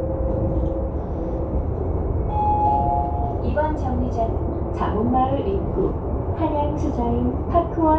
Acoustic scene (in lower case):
bus